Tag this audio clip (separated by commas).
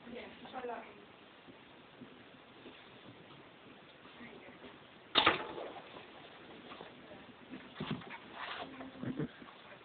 Speech